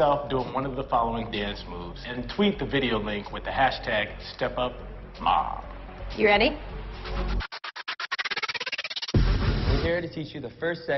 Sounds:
speech, music

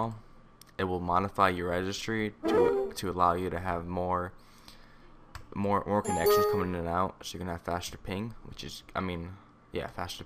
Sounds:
ping, speech

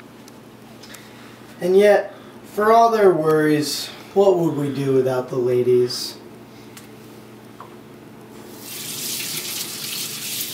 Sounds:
faucet, sink (filling or washing), water

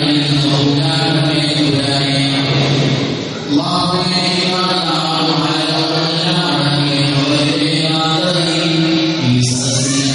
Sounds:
narration, man speaking, speech synthesizer, speech

